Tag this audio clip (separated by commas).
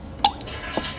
Drip, Liquid, Water